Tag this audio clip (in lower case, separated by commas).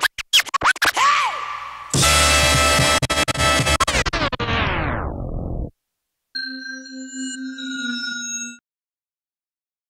music, scratching (performance technique)